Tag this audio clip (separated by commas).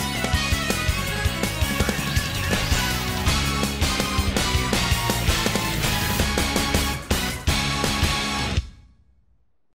Music, Soundtrack music